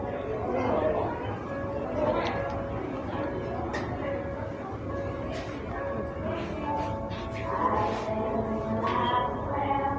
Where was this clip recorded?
in a cafe